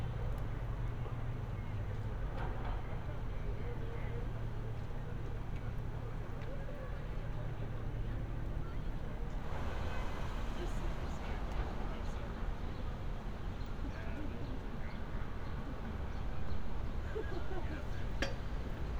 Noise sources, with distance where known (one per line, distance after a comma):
person or small group talking